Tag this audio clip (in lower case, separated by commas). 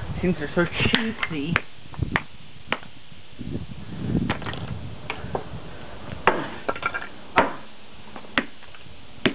whack